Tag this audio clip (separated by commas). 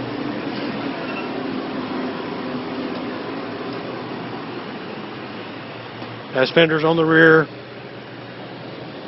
Vehicle, Speech